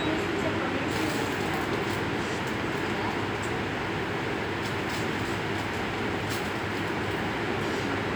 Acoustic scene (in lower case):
subway station